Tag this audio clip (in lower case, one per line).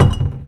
domestic sounds
cupboard open or close